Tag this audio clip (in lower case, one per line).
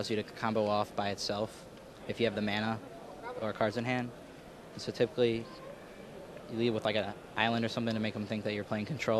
speech